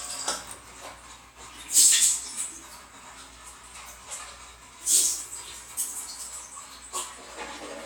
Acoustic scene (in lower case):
restroom